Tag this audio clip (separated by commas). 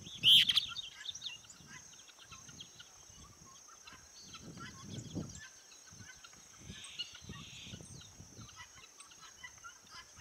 cuckoo bird calling